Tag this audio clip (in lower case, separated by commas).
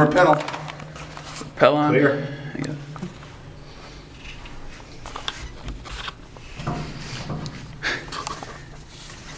speech